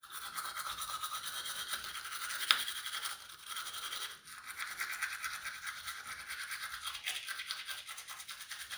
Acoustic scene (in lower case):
restroom